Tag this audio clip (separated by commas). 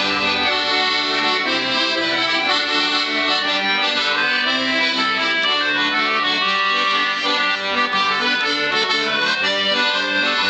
Accordion, playing accordion